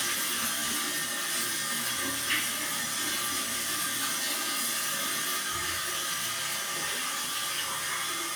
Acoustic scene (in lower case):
restroom